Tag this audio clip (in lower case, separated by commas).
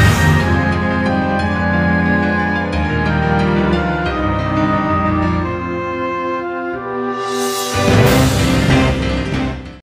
music, soundtrack music